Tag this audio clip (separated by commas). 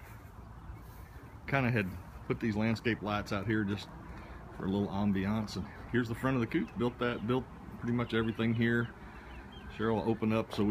Speech